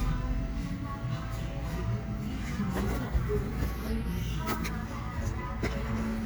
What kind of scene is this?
cafe